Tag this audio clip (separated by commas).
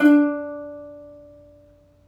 Plucked string instrument, Music, Musical instrument